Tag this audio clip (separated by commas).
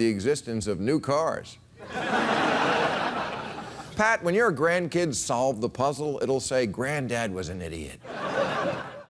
Speech